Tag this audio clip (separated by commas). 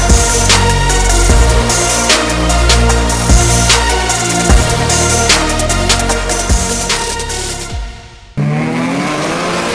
Music